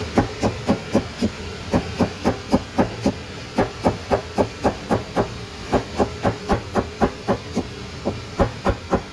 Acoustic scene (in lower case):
kitchen